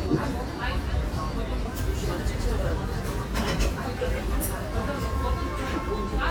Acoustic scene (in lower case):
cafe